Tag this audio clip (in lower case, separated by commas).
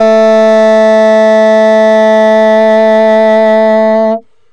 music, wind instrument, musical instrument